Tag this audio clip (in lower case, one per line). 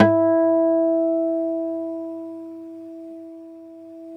musical instrument
acoustic guitar
music
guitar
plucked string instrument